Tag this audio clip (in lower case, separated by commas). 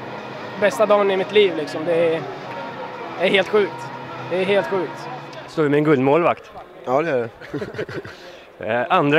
speech